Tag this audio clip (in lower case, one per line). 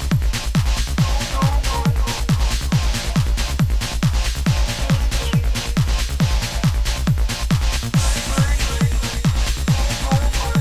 trance music
electronic music
music